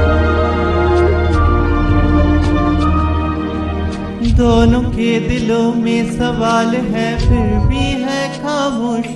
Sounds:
music
singing

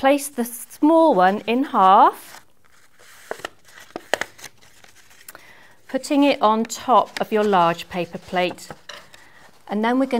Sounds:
speech

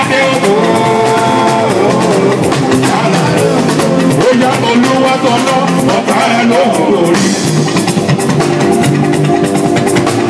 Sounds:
wedding music
music
independent music

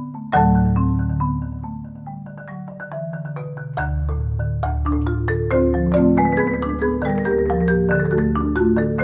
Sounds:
playing marimba
mallet percussion
marimba
glockenspiel

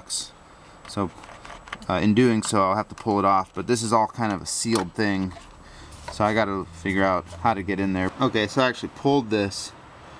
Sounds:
speech

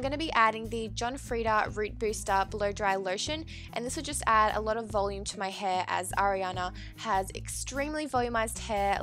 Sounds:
speech
music

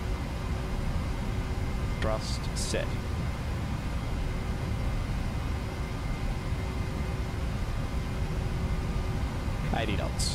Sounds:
speech

